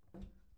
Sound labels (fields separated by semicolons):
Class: cupboard; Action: closing; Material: wooden